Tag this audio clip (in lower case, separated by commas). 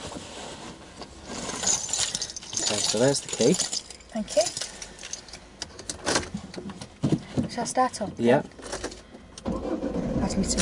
car, speech, vehicle, motor vehicle (road)